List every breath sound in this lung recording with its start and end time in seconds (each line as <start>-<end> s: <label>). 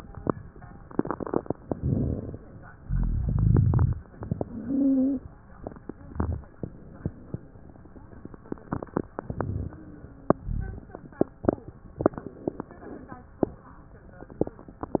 1.72-2.40 s: inhalation
2.78-4.00 s: exhalation
2.82-3.96 s: rhonchi
4.48-5.20 s: stridor